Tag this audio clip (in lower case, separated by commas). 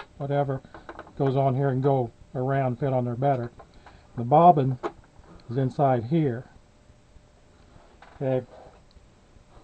speech